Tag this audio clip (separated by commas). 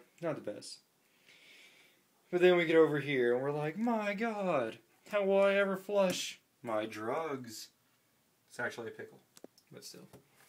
Speech